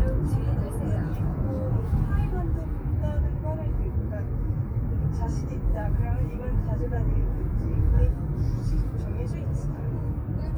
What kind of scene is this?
car